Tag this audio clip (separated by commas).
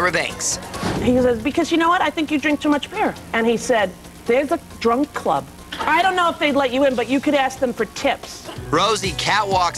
Speech, inside a large room or hall, Music